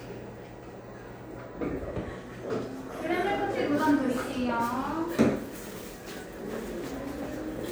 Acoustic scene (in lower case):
cafe